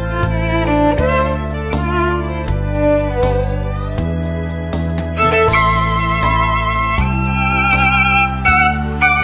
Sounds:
classical music
electronica
music
musical instrument
violin

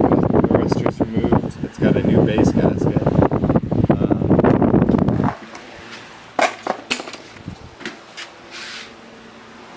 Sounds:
speech

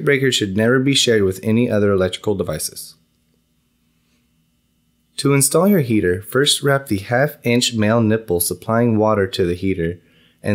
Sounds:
speech

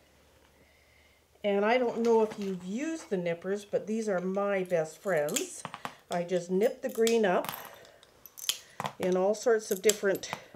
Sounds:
glass
speech

